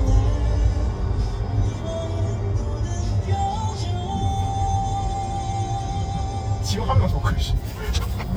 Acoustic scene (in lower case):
car